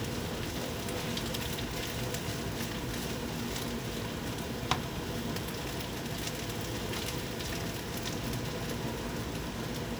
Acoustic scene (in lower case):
kitchen